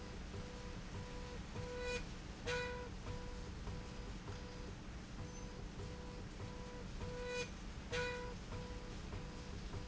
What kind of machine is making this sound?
slide rail